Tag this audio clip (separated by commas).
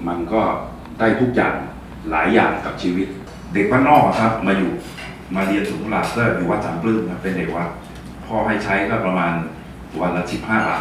Speech